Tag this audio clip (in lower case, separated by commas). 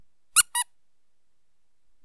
squeak